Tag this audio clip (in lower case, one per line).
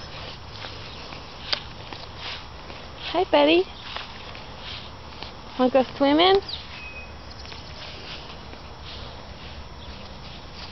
speech